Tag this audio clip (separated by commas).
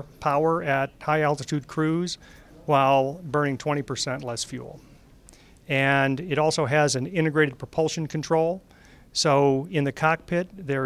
Speech